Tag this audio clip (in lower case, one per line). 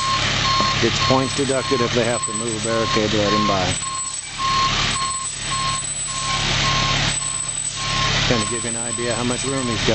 reversing beeps
vehicle
truck
speech